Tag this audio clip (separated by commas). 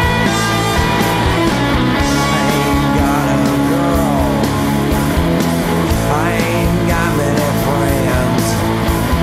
Music